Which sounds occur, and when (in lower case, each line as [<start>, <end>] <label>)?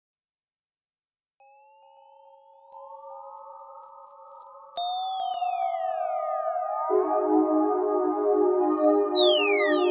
[1.38, 9.90] music